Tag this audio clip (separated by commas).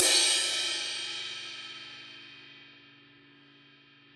Music, Crash cymbal, Musical instrument, Percussion, Cymbal